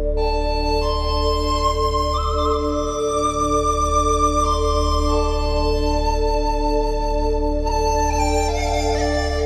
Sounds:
music

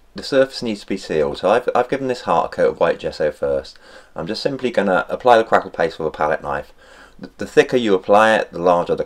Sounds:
speech

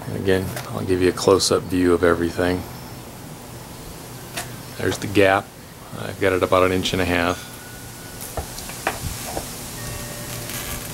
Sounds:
speech

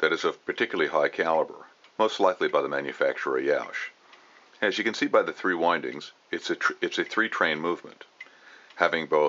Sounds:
speech

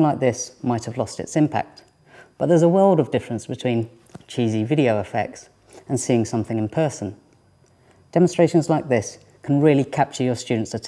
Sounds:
speech

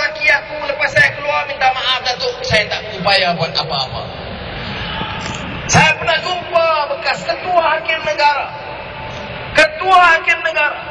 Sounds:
speech
male speech

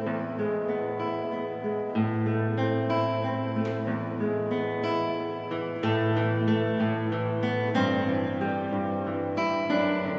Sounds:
musical instrument
plucked string instrument
music
acoustic guitar
guitar

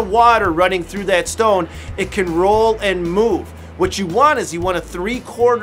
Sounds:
music
speech

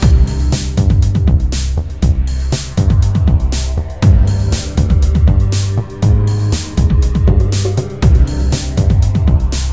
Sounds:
electronic music
music
techno

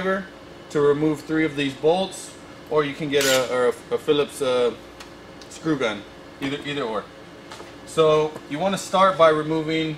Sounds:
speech

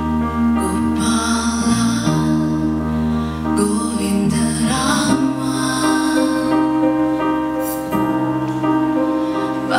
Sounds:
music
mantra

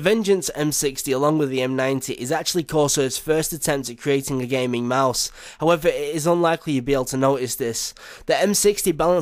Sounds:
speech

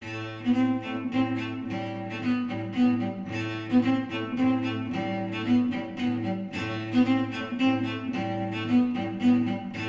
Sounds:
music
string section
cello
bowed string instrument

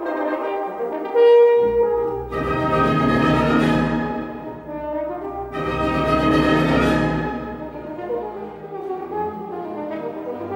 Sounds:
playing french horn

